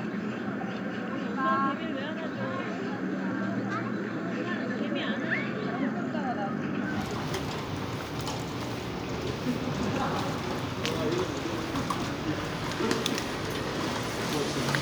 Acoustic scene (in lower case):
residential area